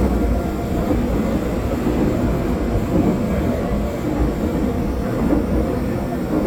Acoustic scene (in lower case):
subway train